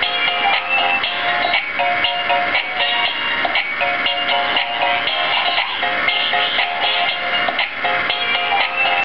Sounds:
music

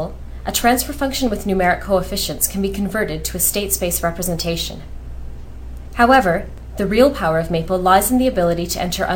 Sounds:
speech

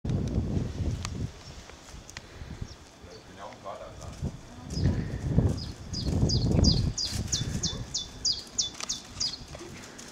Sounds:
domestic animals, speech, animal

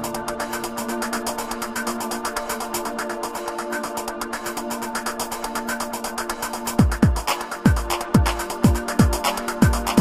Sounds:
drum machine, synthesizer, music

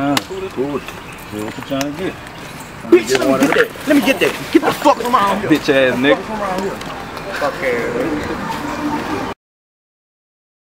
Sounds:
speech

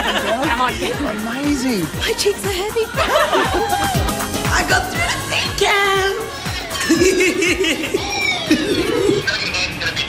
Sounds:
inside a large room or hall, speech, music, singing

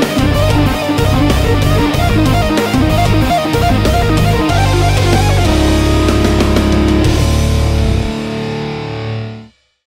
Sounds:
tapping (guitar technique), music

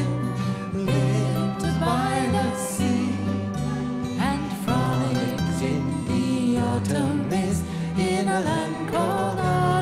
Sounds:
singing, music

